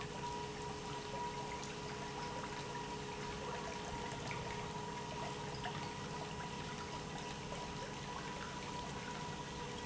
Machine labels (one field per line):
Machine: pump